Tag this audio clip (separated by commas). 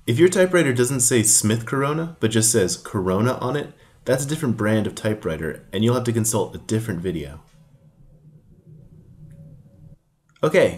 Speech